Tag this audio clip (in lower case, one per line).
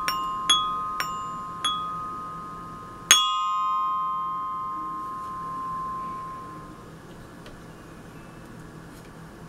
playing glockenspiel